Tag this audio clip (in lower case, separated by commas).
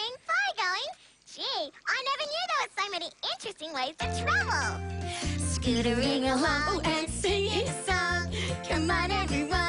music for children, music, inside a large room or hall, speech